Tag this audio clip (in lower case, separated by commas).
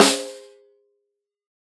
music, snare drum, drum, musical instrument, percussion